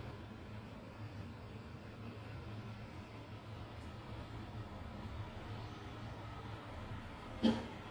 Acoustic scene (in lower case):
residential area